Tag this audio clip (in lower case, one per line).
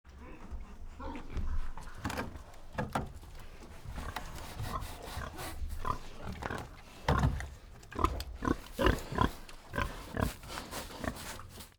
livestock
animal